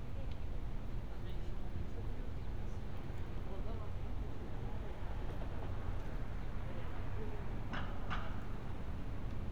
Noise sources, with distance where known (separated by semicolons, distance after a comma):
person or small group talking